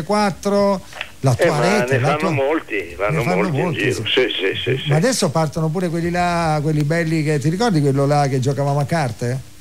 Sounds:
Speech

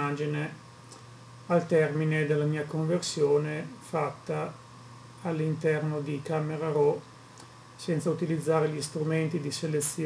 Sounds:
Speech

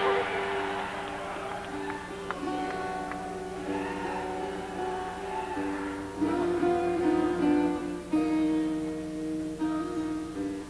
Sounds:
Music

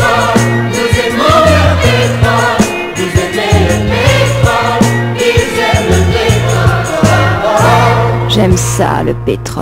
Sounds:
Music

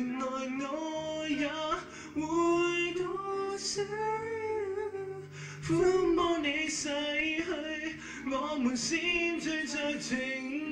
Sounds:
Male singing

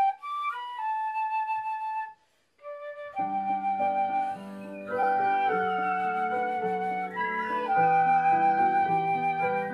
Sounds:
Flute, Music

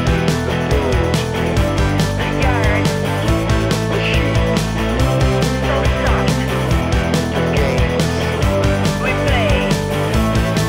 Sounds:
Music, Grunge

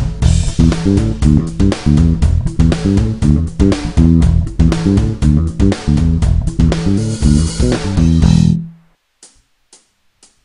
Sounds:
Music

